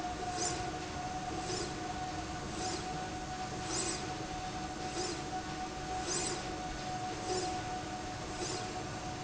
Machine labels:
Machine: slide rail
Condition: normal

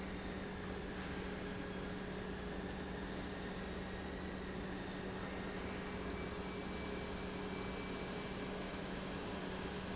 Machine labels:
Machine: pump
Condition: normal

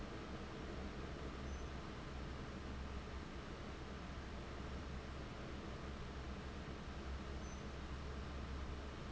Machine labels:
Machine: fan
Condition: abnormal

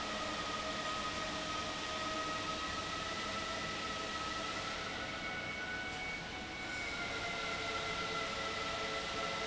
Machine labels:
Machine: fan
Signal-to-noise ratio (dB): -6 dB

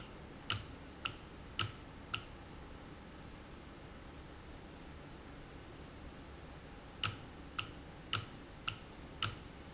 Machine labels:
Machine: valve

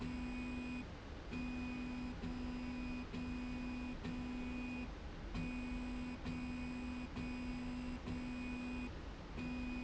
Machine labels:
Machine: slide rail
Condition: normal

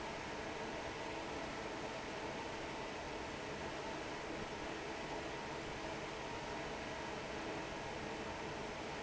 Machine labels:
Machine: fan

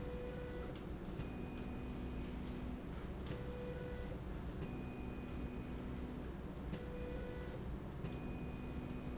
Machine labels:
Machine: slide rail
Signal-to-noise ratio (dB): 0 dB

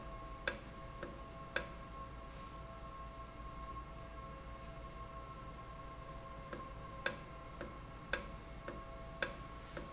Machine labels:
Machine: valve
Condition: normal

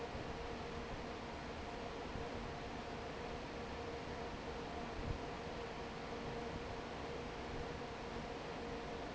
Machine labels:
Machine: fan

